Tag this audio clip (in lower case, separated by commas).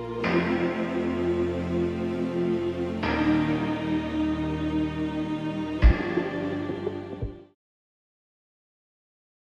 music